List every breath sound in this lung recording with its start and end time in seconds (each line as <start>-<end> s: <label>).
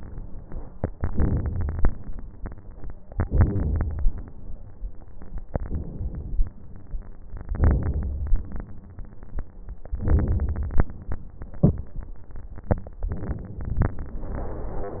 0.97-1.86 s: inhalation
0.97-1.86 s: crackles
3.21-4.09 s: inhalation
3.21-4.09 s: crackles
5.56-6.51 s: inhalation
7.55-8.50 s: inhalation
7.55-8.50 s: crackles
9.98-10.92 s: inhalation
9.98-10.92 s: crackles
13.14-14.09 s: inhalation